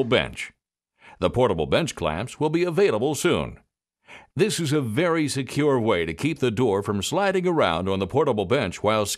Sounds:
Speech

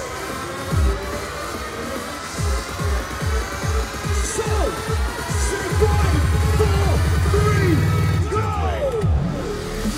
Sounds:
Music, Electronic music, Dubstep

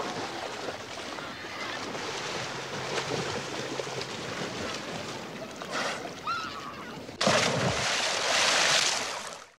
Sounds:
Horse

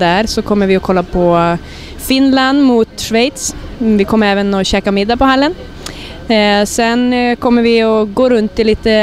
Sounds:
Speech

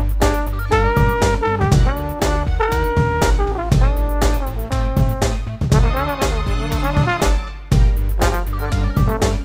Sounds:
Trombone, Brass instrument

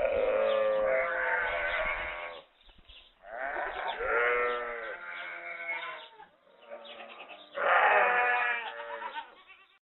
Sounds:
livestock, Sheep, Animal

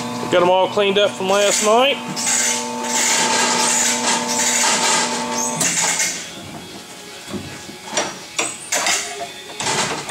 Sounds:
Speech, Music

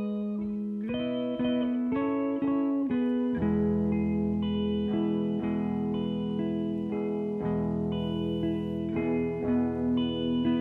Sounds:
Music

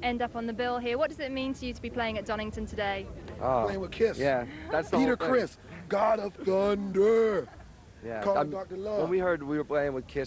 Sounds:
Speech

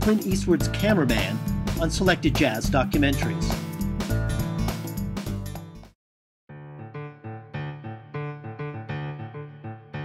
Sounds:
Music, Speech

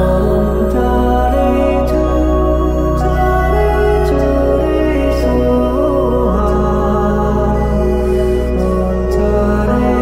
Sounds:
Music, Mantra, New-age music

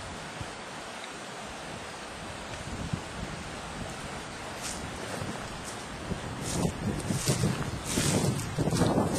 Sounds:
pheasant crowing

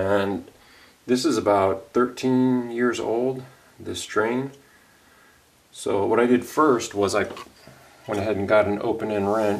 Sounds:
Speech

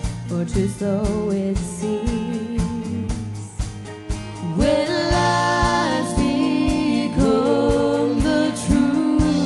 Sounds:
Female singing, Music

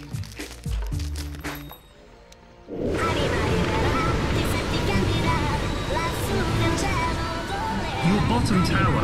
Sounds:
Speech

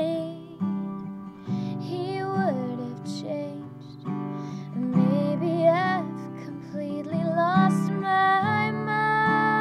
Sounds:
Music

